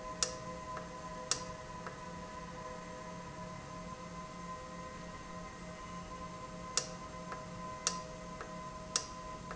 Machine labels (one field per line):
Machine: valve